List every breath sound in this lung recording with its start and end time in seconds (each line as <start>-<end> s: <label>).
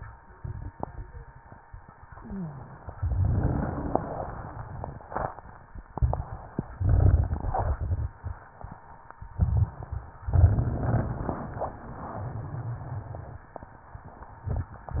2.15-2.75 s: wheeze